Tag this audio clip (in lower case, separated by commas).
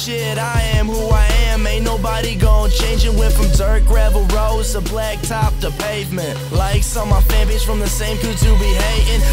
music